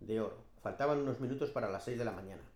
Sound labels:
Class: speech